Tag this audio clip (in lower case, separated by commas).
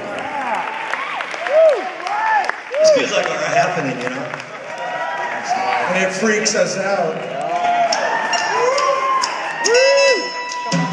speech